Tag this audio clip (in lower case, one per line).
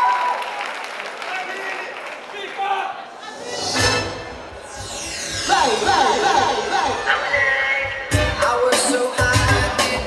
music
inside a large room or hall
speech